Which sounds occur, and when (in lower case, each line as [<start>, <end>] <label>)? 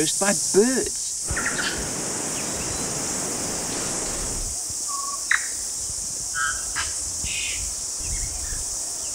[0.00, 0.36] man speaking
[0.00, 9.14] insect
[0.00, 9.14] rustle
[0.00, 9.14] wind
[0.50, 0.84] man speaking
[1.33, 1.69] bird vocalization
[2.33, 2.39] bird vocalization
[2.54, 2.88] bird vocalization
[4.85, 5.15] bird vocalization
[5.28, 5.44] bird vocalization
[5.70, 7.30] wind noise (microphone)
[6.32, 6.59] bird vocalization
[6.73, 6.82] bird vocalization
[7.22, 7.58] bird vocalization
[7.47, 7.74] wind noise (microphone)
[7.93, 8.84] wind noise (microphone)
[7.97, 8.58] bird vocalization